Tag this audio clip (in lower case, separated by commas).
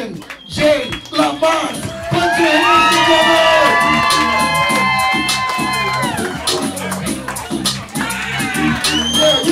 music, speech